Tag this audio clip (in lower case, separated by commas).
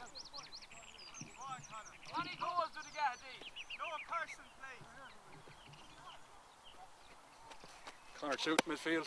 speech